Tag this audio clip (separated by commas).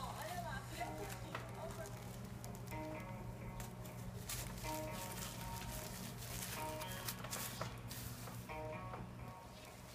Speech, Music